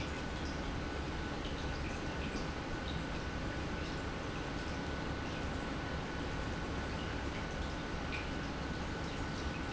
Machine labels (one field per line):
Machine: pump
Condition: normal